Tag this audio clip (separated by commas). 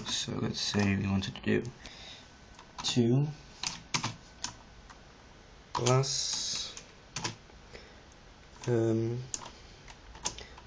Typing, Computer keyboard, Speech